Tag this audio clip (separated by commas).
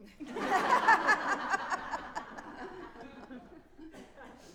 Human voice, Laughter